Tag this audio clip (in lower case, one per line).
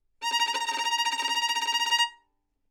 music
musical instrument
bowed string instrument